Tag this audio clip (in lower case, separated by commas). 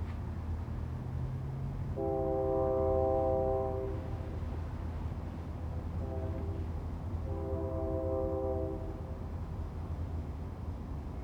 rail transport, vehicle, train